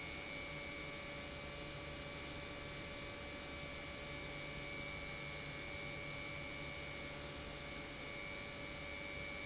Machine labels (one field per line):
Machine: pump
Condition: normal